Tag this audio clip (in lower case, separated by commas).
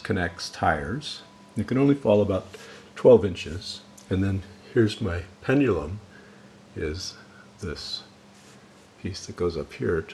speech